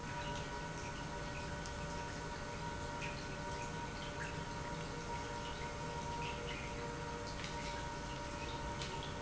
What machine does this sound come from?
pump